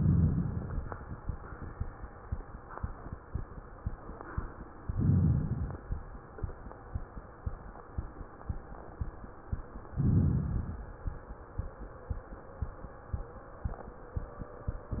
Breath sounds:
4.86-6.02 s: inhalation
9.95-10.83 s: inhalation

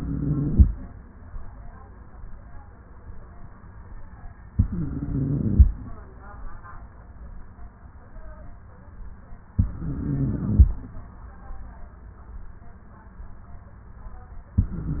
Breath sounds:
0.00-0.68 s: inhalation
4.54-5.66 s: inhalation
9.56-10.68 s: inhalation
14.60-15.00 s: inhalation

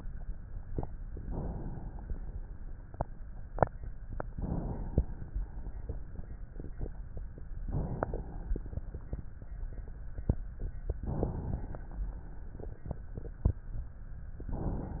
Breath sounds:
1.14-2.22 s: inhalation
4.28-5.33 s: inhalation
5.33-6.51 s: exhalation
7.58-8.69 s: inhalation
8.68-10.31 s: exhalation
10.93-12.04 s: inhalation
12.06-13.77 s: exhalation

